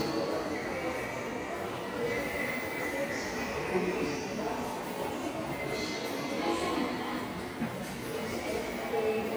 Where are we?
in a subway station